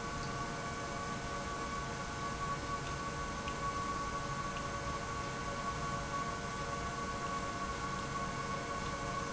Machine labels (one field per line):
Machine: pump